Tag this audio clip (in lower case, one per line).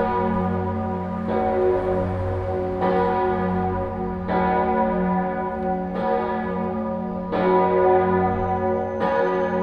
church bell ringing
church bell